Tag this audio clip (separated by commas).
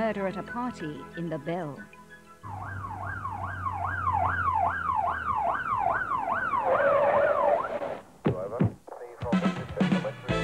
Police car (siren), Emergency vehicle, Speech, Music